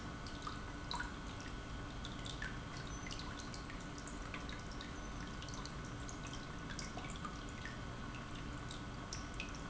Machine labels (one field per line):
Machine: pump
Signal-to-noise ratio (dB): 6 dB